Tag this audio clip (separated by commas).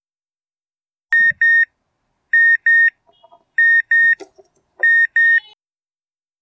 Alarm